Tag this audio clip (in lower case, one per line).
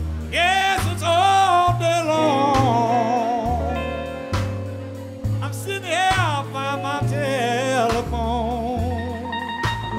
music
blues